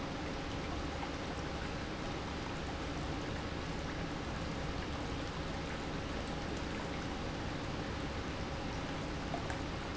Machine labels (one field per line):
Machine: pump